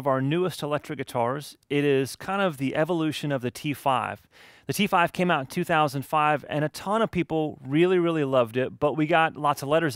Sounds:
speech

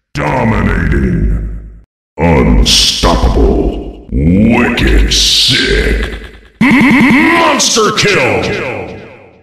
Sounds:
reverberation

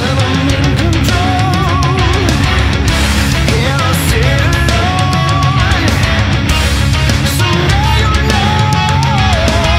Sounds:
music

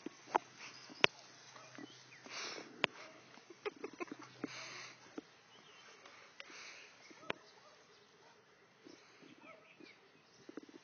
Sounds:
bow-wow, animal

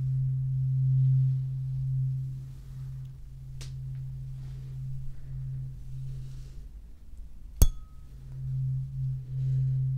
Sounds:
playing tuning fork

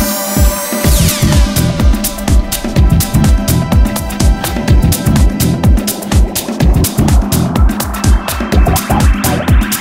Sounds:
music

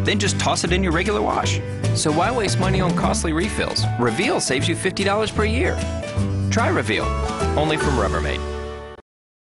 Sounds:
speech, music

